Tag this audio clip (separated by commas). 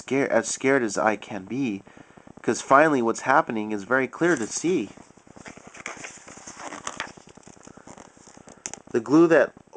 Speech, inside a small room